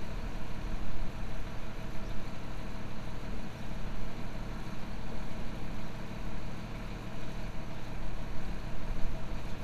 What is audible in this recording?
large-sounding engine